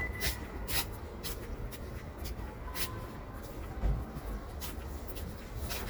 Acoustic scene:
residential area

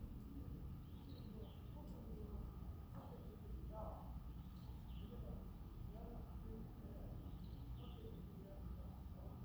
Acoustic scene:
residential area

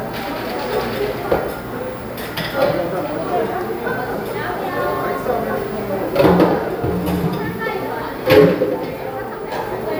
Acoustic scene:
cafe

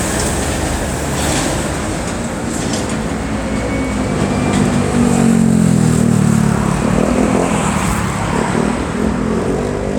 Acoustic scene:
street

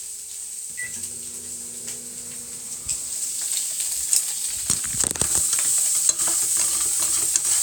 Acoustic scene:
kitchen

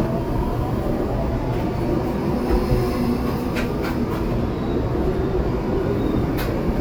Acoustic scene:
subway train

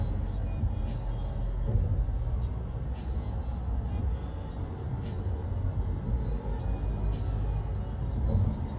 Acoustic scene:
car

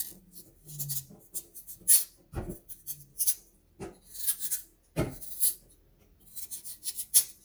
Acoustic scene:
kitchen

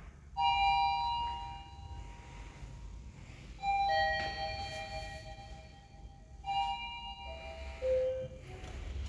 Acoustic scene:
elevator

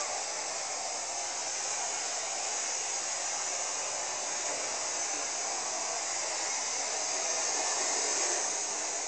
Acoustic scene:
street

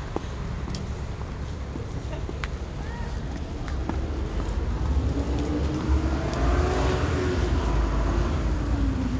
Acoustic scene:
street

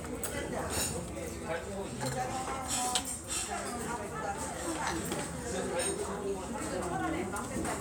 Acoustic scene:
restaurant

